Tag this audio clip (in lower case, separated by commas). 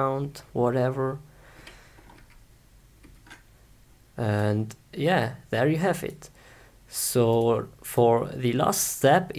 speech